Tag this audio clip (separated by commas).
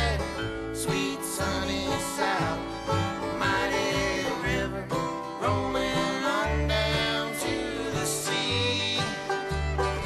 Banjo, Bluegrass